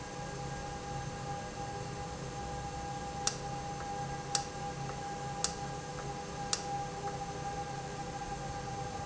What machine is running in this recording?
valve